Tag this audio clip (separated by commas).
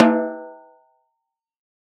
Percussion, Snare drum, Musical instrument, Music, Drum